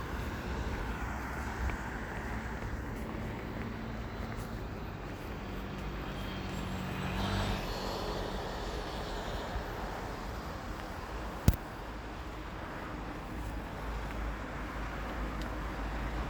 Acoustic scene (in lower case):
street